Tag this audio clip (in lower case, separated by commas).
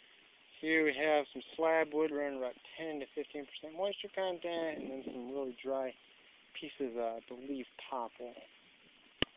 speech